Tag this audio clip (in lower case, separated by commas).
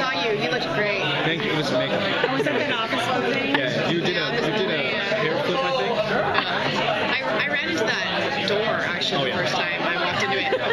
speech